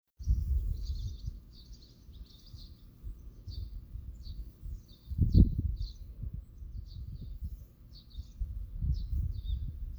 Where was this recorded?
in a park